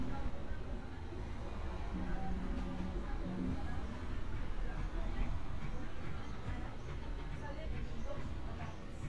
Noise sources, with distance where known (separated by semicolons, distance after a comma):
unidentified human voice